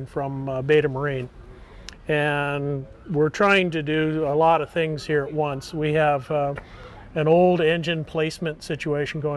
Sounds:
Speech

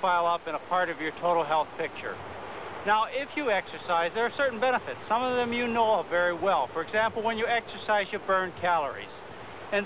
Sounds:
Speech

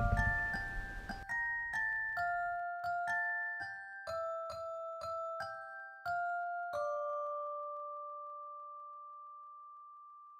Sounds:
Music, Glockenspiel

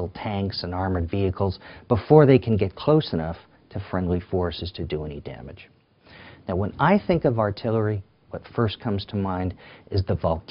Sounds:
inside a small room, Speech

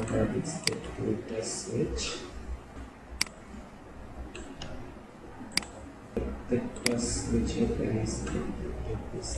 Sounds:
Speech

